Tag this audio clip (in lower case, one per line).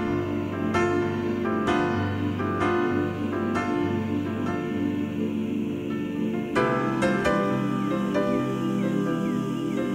music